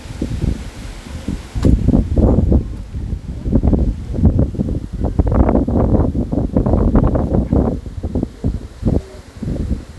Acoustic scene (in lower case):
park